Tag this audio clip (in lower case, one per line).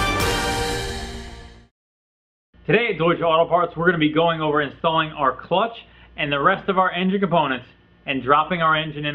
music
speech